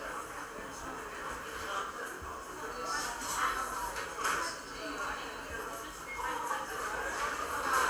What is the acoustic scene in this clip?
cafe